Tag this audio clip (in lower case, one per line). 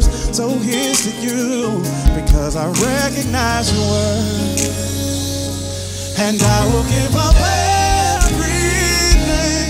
music